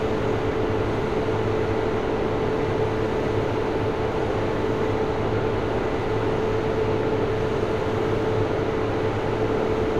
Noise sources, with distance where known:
large-sounding engine, near

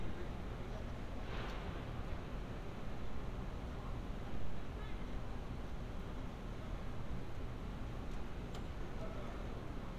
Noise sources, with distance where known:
engine of unclear size
unidentified human voice, far

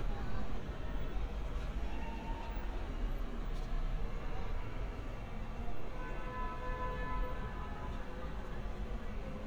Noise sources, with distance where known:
car horn, far
person or small group talking

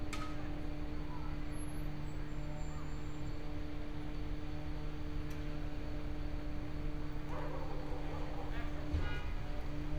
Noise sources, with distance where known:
car horn, far
dog barking or whining, far

